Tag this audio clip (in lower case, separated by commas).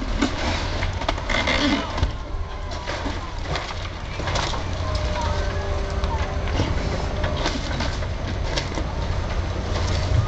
skateboard